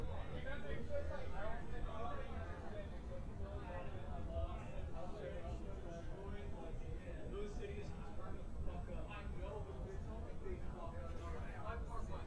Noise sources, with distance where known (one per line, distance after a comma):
person or small group talking, near